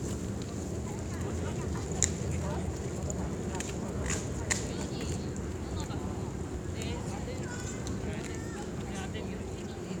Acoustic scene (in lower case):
park